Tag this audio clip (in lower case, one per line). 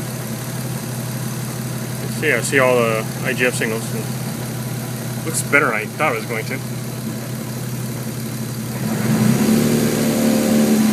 vehicle
speech
medium engine (mid frequency)